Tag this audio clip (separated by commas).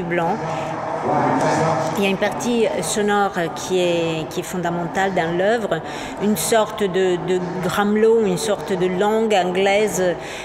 Speech